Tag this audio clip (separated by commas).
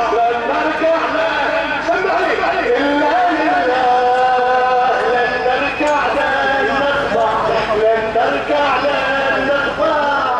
people marching